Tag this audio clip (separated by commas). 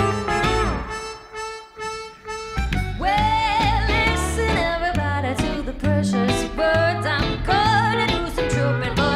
Music